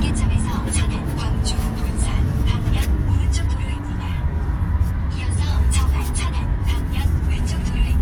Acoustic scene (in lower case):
car